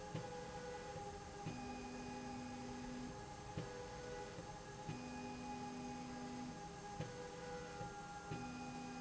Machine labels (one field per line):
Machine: slide rail